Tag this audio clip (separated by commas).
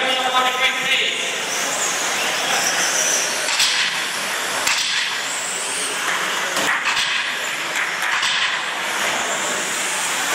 Speech, inside a large room or hall